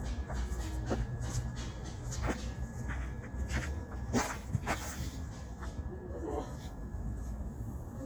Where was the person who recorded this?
in a park